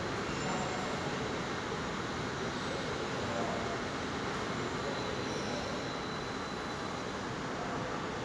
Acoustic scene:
subway station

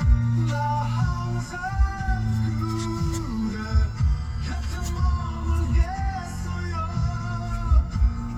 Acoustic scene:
car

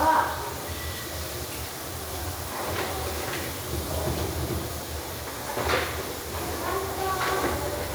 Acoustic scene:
restroom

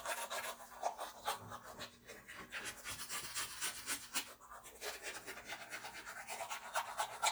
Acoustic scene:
restroom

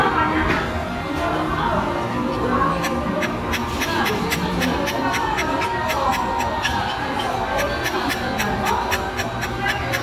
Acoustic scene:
restaurant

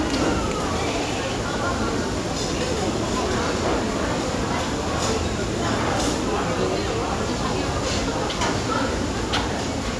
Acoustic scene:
restaurant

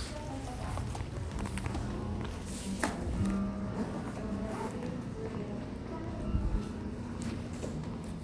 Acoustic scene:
cafe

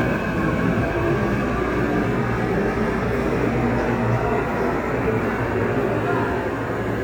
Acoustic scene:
subway station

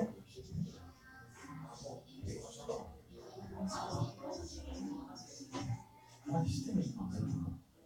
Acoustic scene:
crowded indoor space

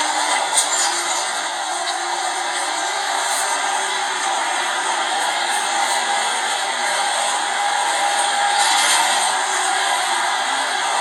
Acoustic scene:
subway train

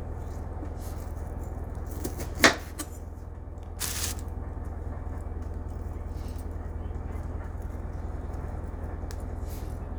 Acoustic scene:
kitchen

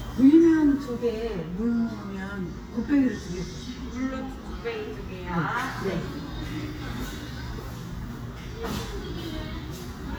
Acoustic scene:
restaurant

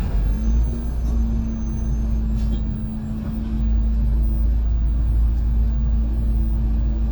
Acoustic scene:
bus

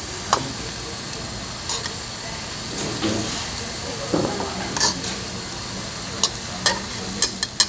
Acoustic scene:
restaurant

